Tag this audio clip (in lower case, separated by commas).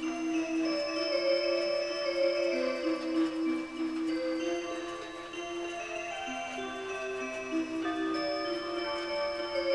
music